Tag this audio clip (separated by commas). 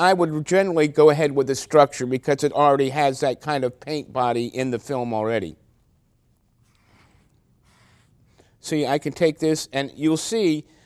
Speech